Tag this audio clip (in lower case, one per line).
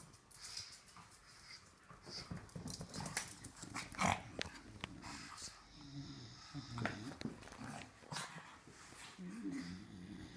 pets
animal